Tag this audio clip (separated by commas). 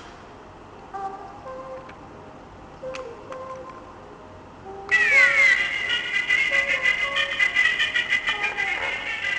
Music